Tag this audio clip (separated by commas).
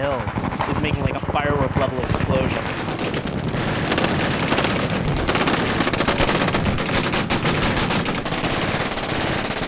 machine gun shooting